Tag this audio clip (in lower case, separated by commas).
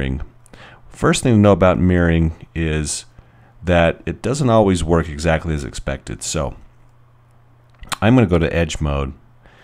speech